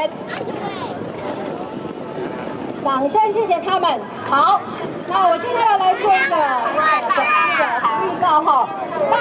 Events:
[0.00, 0.96] female speech
[0.00, 9.20] surf
[0.00, 9.20] wind
[2.83, 4.02] female speech
[4.20, 4.77] female speech
[5.08, 9.20] female speech

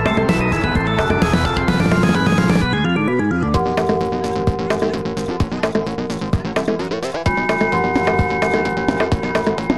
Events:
[0.00, 9.75] music
[3.53, 5.41] bell
[4.07, 4.44] human voice
[4.62, 4.97] human voice
[6.35, 6.68] human voice
[7.25, 9.75] bell

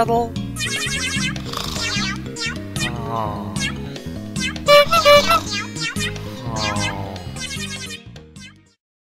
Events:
[0.00, 0.37] man speaking
[0.00, 8.80] music
[1.33, 2.26] snoring
[2.90, 3.59] human sounds
[4.69, 5.45] air horn
[5.30, 5.62] snoring
[6.37, 7.32] human sounds

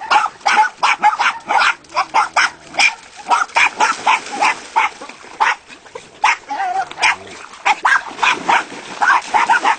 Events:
[0.00, 0.26] bark
[0.00, 9.75] water
[0.00, 9.75] wind
[0.42, 0.66] bark
[0.79, 1.70] bark
[1.70, 2.79] growling
[1.92, 2.93] bark
[3.24, 4.55] bark
[3.67, 5.39] splash
[4.73, 4.97] bark
[5.36, 5.57] bark
[6.21, 6.38] bark
[6.44, 7.35] growling
[6.92, 7.14] bark
[7.62, 8.63] bark
[7.83, 9.75] splash
[8.98, 9.75] bark

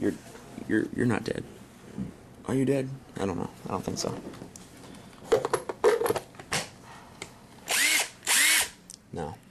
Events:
[0.00, 0.16] male speech
[0.00, 0.45] surface contact
[0.00, 9.50] mechanisms
[0.27, 0.38] generic impact sounds
[0.60, 0.81] male speech
[0.71, 0.83] surface contact
[0.92, 1.41] male speech
[1.93, 2.08] human voice
[2.27, 2.35] tick
[2.40, 2.83] male speech
[3.03, 3.10] tick
[3.12, 3.43] male speech
[3.39, 3.76] surface contact
[3.68, 4.04] male speech
[3.77, 4.21] generic impact sounds
[4.32, 4.44] generic impact sounds
[4.49, 4.57] tick
[4.59, 5.25] surface contact
[4.78, 4.92] generic impact sounds
[5.04, 5.09] generic impact sounds
[5.24, 5.53] generic impact sounds
[5.65, 5.71] generic impact sounds
[5.82, 6.19] generic impact sounds
[6.31, 6.39] generic impact sounds
[6.48, 6.66] generic impact sounds
[6.73, 7.04] surface contact
[7.16, 7.22] clicking
[7.47, 7.58] generic impact sounds
[7.64, 8.06] drill
[8.25, 8.78] drill
[8.85, 8.97] clicking
[9.07, 9.35] male speech
[9.24, 9.49] surface contact

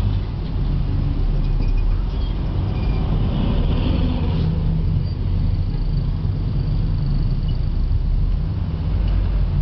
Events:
[0.00, 9.61] traffic noise
[0.05, 0.18] generic impact sounds
[0.44, 0.54] generic impact sounds
[1.38, 1.87] squeal
[2.11, 2.35] squeal
[2.70, 3.08] squeal
[4.96, 5.15] squeal
[7.42, 7.51] generic impact sounds
[9.03, 9.09] generic impact sounds

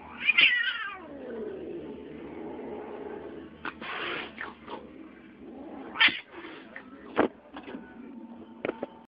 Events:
[0.00, 9.05] mechanisms
[0.00, 9.05] television
[5.91, 6.24] caterwaul
[8.60, 8.85] generic impact sounds

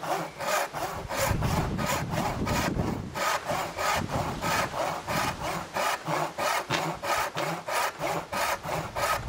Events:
[0.00, 2.99] sawing
[0.00, 9.25] wind
[1.12, 3.13] wind noise (microphone)
[3.10, 9.25] sawing
[3.90, 4.70] wind noise (microphone)
[5.10, 5.65] wind noise (microphone)

